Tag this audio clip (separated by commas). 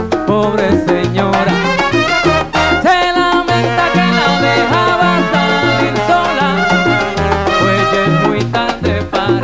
Music